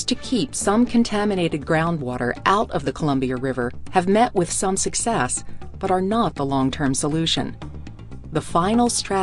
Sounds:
speech synthesizer

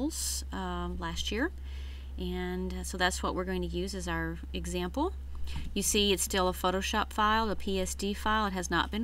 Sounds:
speech

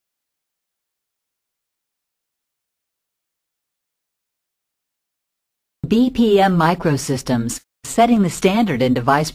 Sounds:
speech synthesizer

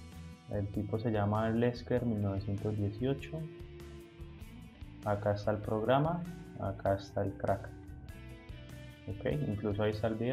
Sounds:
music, speech

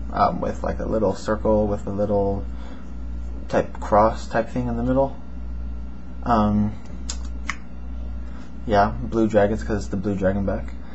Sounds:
speech

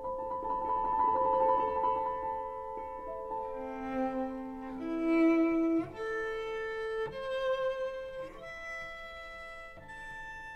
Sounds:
music, fiddle

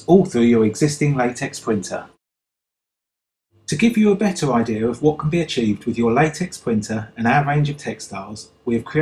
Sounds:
speech

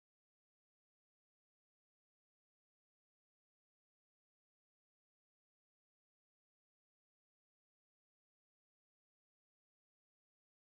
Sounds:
silence

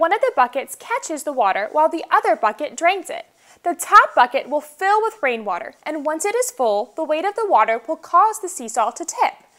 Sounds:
speech

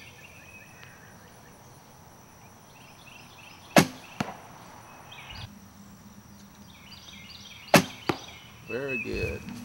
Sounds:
arrow, speech

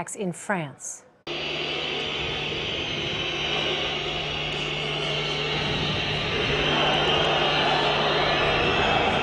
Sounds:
people booing

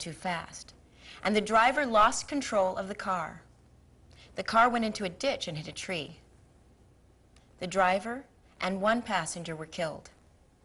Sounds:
monologue, speech, woman speaking

